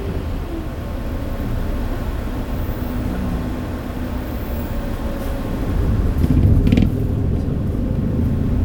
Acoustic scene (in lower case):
bus